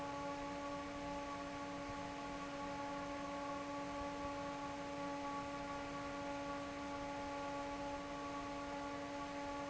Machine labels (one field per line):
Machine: fan